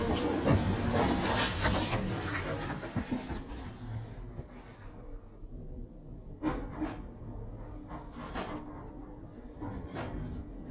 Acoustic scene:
elevator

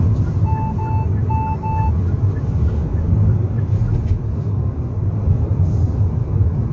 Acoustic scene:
car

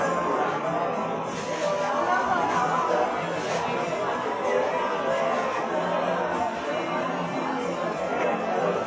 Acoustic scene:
cafe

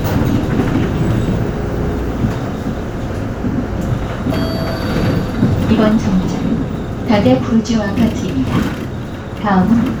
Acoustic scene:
bus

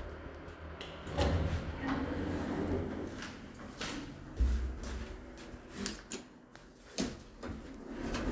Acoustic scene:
elevator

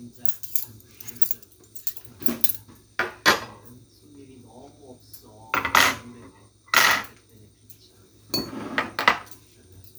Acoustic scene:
kitchen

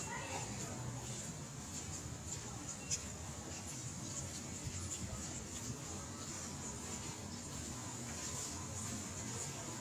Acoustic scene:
residential area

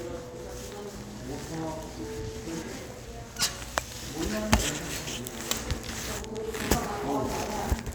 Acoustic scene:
crowded indoor space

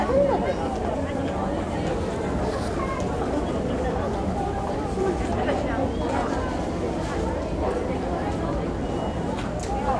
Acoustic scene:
crowded indoor space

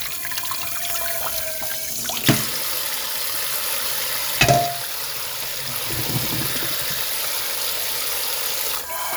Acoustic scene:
kitchen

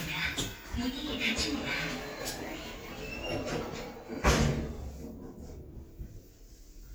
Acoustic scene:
elevator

